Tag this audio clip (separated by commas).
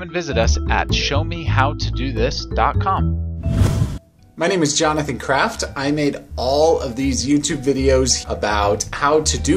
inside a small room, Speech, Music